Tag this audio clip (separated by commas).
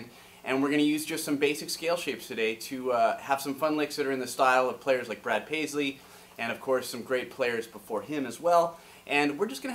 Speech